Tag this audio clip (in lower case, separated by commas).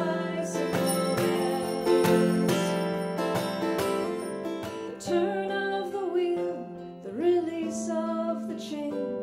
music, bicycle bell